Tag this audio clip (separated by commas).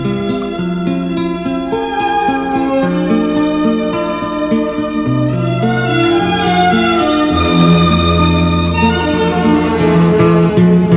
Tender music, Music